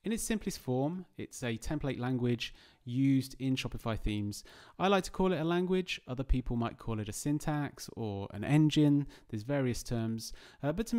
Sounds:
speech

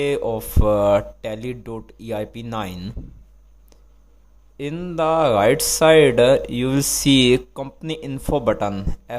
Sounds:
speech

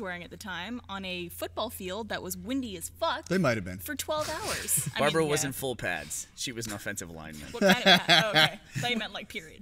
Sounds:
speech

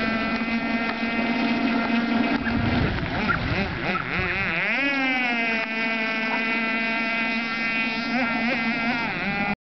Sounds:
speedboat

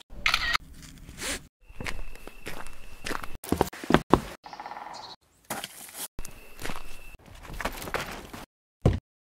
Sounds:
knock, footsteps, outside, rural or natural

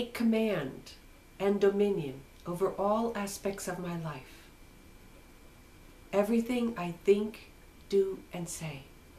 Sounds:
speech

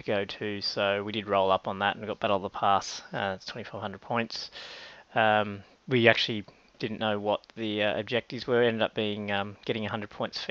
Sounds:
speech

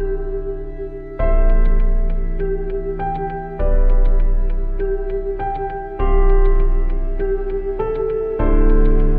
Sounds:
music, new-age music

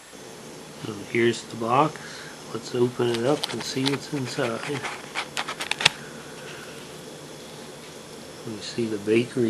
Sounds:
speech

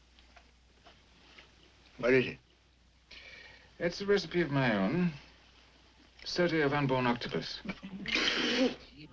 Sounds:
speech, music, inside a small room

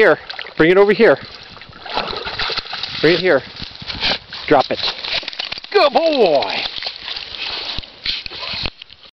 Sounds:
speech

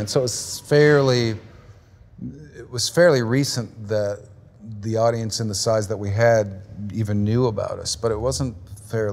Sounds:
speech

